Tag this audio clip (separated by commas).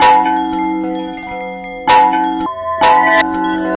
Chime, Bell